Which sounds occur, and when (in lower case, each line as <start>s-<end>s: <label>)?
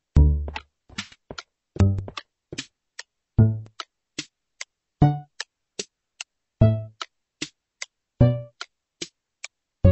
0.0s-9.9s: background noise
0.1s-1.4s: music
1.7s-3.0s: music
3.3s-4.7s: music
5.0s-6.2s: music
6.6s-7.8s: music
8.2s-9.9s: music